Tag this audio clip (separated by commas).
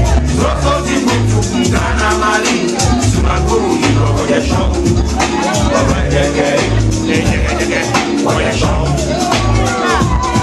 Speech, Maraca, Music